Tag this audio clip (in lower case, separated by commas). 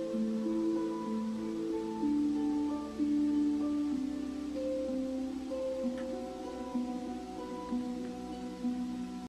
music